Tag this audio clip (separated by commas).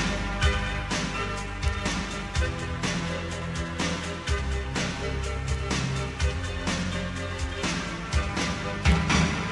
Music